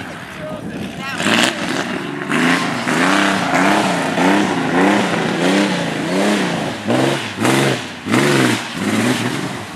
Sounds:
speech

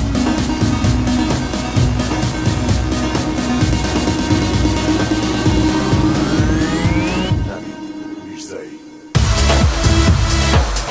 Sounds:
house music, music

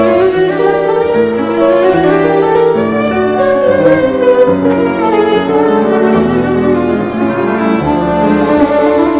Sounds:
music, fiddle, musical instrument

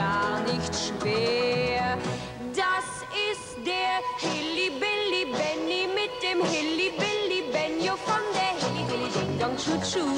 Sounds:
music

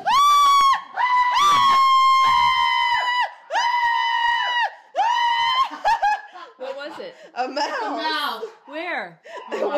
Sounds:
inside a large room or hall, speech

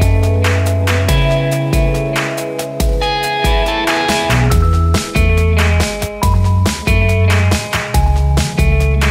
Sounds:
music

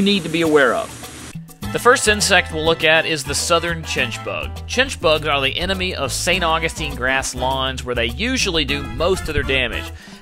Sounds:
speech, music

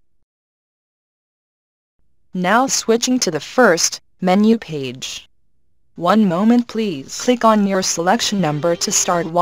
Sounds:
music, speech

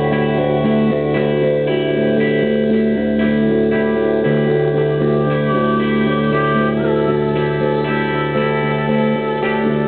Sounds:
music

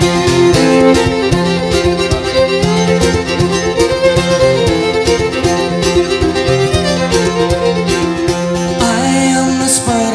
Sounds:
music, independent music

